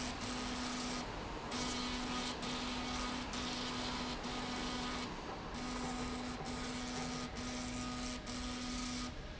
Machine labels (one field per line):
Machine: slide rail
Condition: abnormal